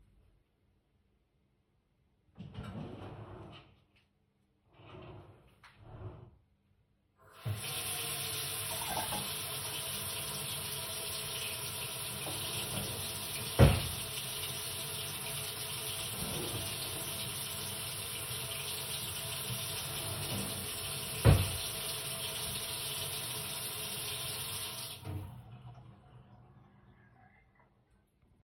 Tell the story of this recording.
I placed the phone on the kitchen counter near the sink. I turned on the faucet so that running water is clearly audible. While the water was running I opened and closed a kitchen drawer. The drawer sound partially overlaps with the water.